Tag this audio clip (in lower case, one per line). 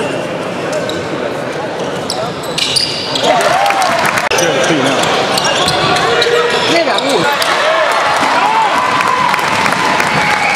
basketball bounce
speech